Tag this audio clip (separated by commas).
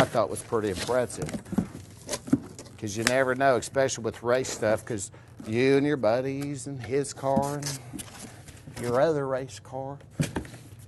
Speech